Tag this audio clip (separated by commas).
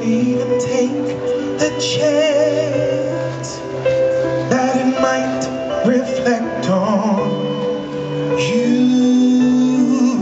Male singing, Music